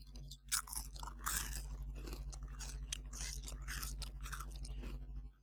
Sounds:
chewing

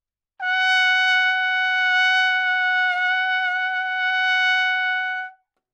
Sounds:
musical instrument, brass instrument, trumpet, music

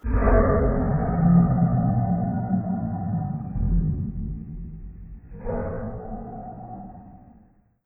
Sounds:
animal

